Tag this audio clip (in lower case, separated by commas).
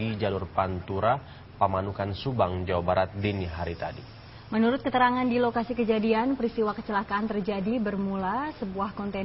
speech, vehicle